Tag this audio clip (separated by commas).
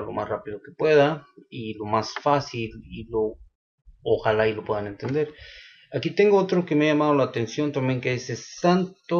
Speech